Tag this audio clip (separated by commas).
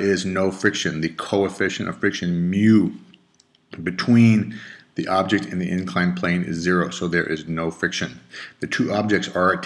Speech